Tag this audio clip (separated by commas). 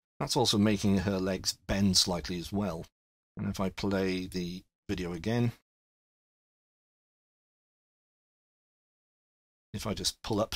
Speech synthesizer